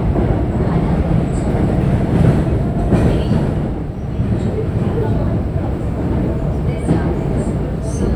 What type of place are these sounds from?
subway train